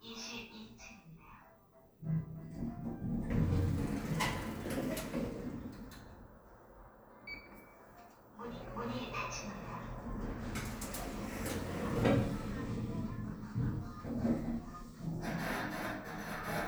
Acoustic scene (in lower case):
elevator